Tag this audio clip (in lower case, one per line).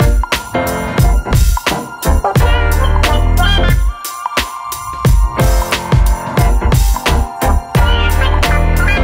music